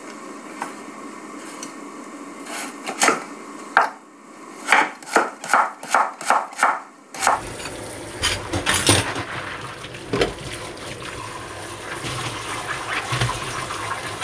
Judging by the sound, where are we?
in a kitchen